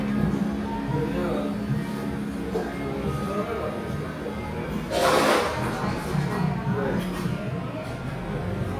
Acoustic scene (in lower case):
cafe